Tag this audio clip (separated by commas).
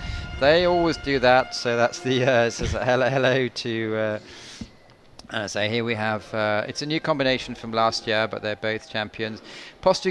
Speech, Music